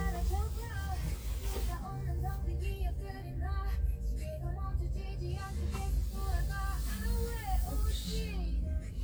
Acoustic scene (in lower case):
car